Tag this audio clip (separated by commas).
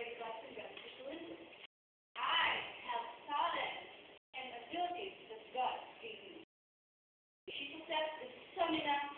monologue, Female speech, Speech